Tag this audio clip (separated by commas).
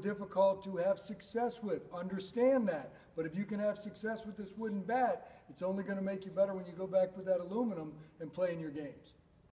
Speech